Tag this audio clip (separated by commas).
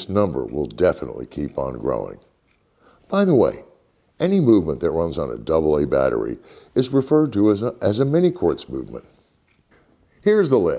Speech